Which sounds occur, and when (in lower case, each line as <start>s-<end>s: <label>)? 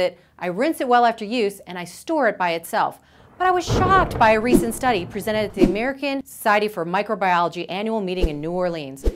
0.0s-0.2s: female speech
0.4s-3.0s: female speech
3.0s-3.3s: breathing
3.4s-9.0s: female speech
3.6s-5.2s: sound effect
5.5s-5.7s: sound effect
8.1s-8.4s: sound effect
9.0s-9.1s: sound effect